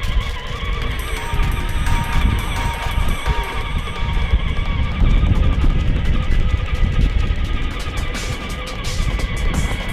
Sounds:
Music, Vehicle

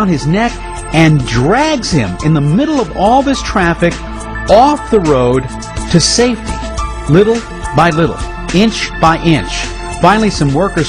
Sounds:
Music, Speech

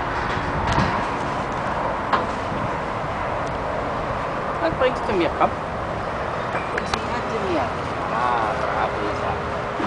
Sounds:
Speech

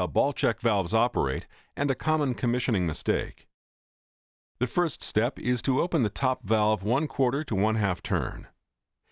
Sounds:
Speech

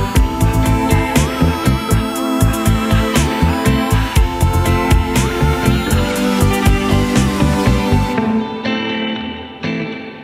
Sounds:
Music, Echo

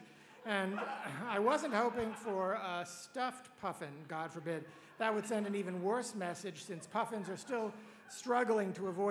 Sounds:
monologue, Speech, Male speech

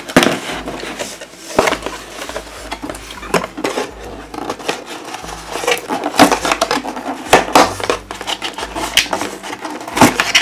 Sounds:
Music

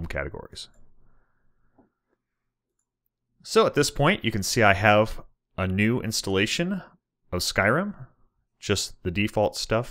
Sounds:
inside a small room, Speech

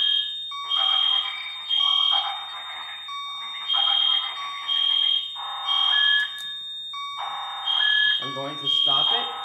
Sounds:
Alarm, Speech, Fire alarm

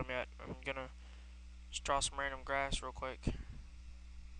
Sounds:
Speech

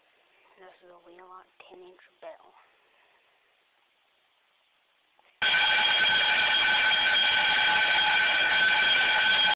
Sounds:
Speech

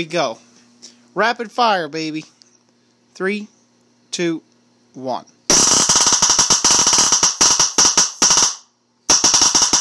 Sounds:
Speech

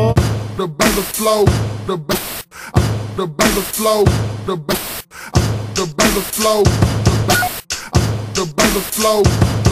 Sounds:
Music

